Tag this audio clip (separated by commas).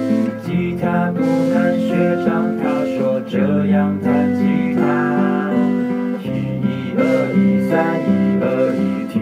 Guitar, Music, Musical instrument, Strum